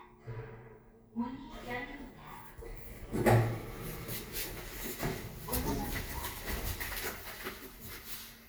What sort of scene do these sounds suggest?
elevator